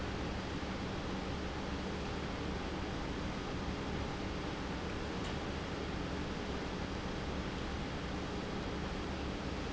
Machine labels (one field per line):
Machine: pump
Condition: normal